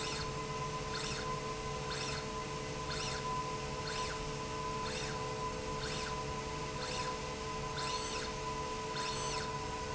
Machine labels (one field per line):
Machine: slide rail